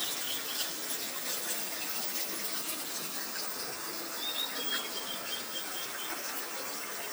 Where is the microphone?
in a park